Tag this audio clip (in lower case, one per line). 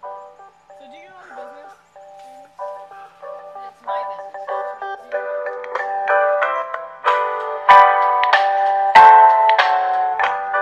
music
speech